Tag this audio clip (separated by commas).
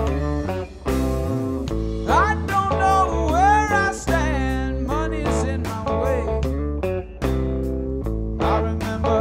Music